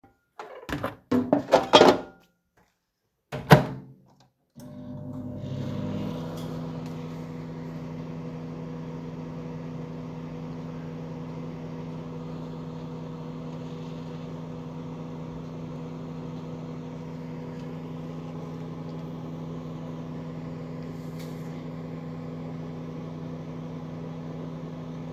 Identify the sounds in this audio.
microwave, cutlery and dishes